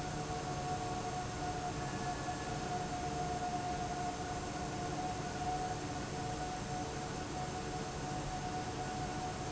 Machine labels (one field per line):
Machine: fan